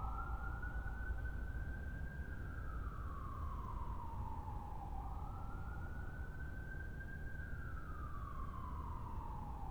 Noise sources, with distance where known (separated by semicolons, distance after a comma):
siren, far